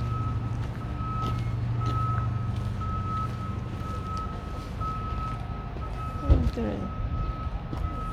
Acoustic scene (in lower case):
residential area